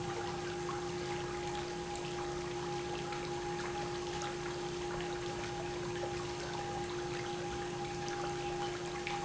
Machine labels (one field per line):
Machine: pump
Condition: normal